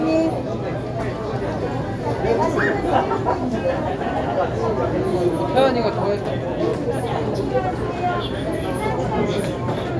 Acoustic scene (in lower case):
crowded indoor space